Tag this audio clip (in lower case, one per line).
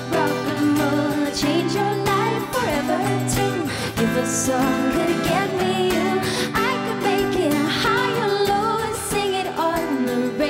music
happy music